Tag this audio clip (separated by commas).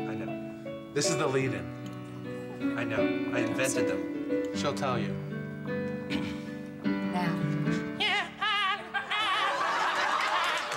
Speech, Music